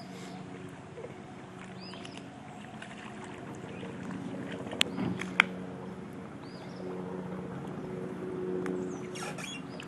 A motorboat on the water